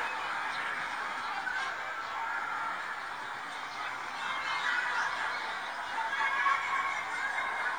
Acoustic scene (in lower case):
residential area